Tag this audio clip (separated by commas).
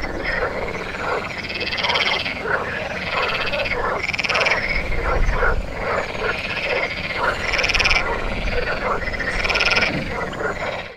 frog croaking